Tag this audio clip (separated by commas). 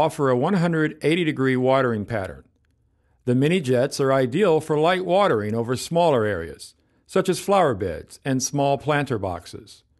Speech